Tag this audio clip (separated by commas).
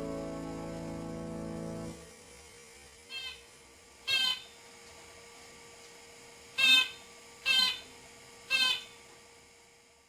pets, Music, Bird